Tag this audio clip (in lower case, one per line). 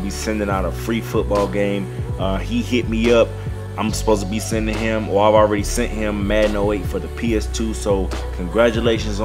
speech
music